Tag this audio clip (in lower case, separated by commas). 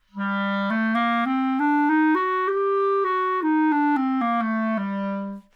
music, musical instrument, woodwind instrument